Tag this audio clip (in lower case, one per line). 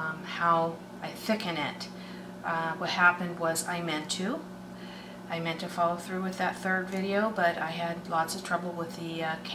speech